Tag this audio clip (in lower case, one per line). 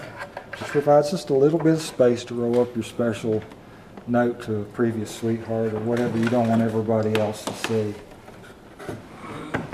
speech